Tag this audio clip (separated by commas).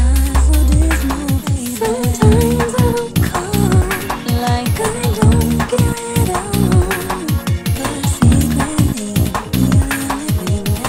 Drum and bass